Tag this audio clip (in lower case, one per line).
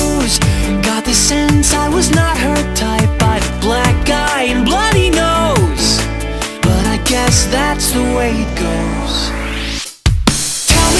music